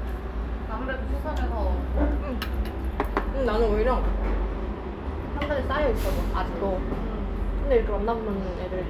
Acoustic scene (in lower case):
restaurant